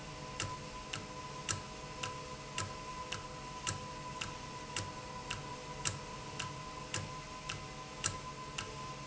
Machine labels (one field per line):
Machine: valve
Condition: normal